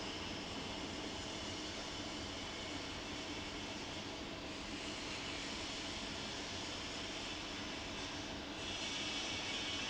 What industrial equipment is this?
fan